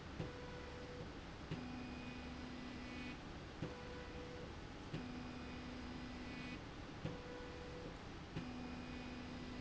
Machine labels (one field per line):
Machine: slide rail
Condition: normal